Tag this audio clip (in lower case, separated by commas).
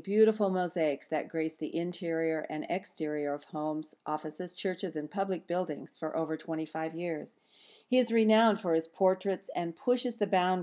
speech